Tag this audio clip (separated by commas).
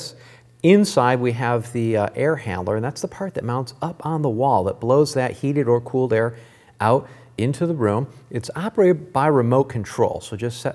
Speech